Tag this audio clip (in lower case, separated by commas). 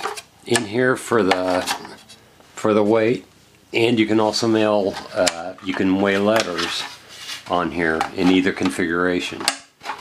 inside a small room, speech